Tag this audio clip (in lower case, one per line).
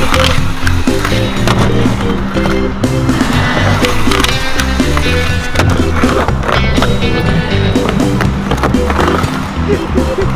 skateboarding